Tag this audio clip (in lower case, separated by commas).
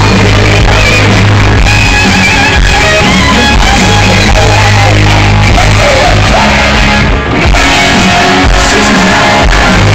music, crowd, singing, rock music